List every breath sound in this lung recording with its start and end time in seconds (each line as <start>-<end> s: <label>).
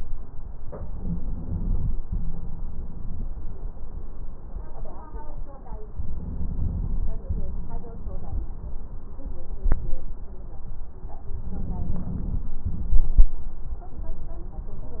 0.70-1.96 s: inhalation
2.03-3.29 s: exhalation
5.82-7.08 s: inhalation
7.27-8.54 s: exhalation
11.25-12.52 s: inhalation
12.67-13.34 s: exhalation